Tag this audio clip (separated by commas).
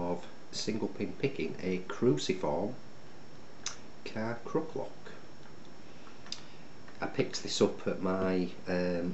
Speech